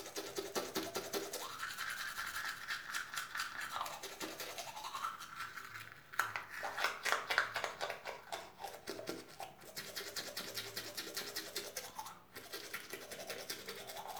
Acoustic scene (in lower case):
restroom